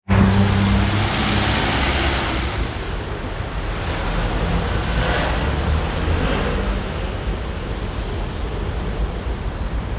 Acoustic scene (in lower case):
street